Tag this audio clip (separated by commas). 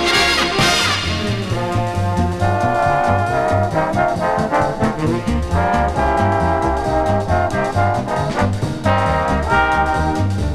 Orchestra, Music, Trumpet